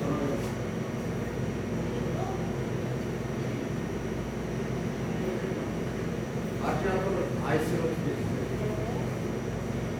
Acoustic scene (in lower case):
cafe